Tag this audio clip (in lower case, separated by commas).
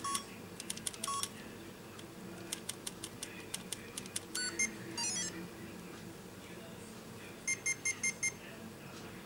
inside a small room